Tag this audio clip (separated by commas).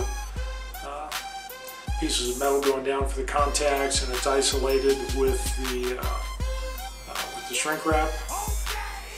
Speech, Music